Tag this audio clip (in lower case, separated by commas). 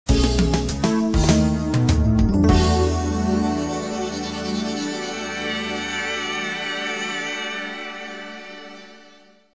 music